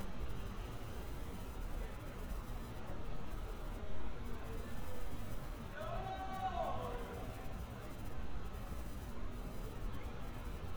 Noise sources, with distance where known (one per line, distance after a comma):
person or small group shouting, far